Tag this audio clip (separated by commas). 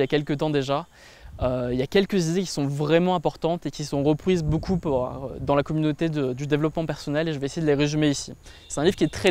Speech